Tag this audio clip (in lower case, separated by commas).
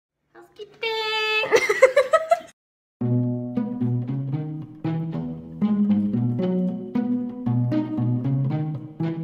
speech, music